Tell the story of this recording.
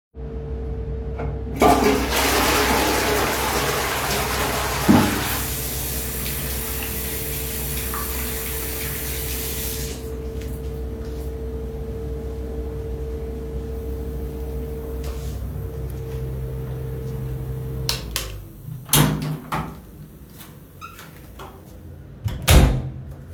I flush the toilet and then wash my hands under running water. I dry my hands with the towel, then turn off both the light switch and the exhaust fan. Finally, the bathroom door is opened and closed again. Fan noise in the backround for most of the recording.